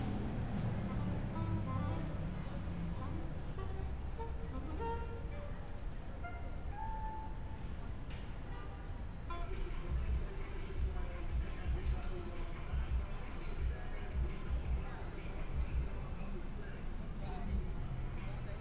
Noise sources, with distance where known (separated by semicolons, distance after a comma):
music from an unclear source